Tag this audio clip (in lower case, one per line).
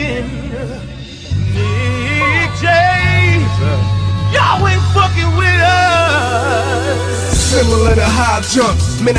music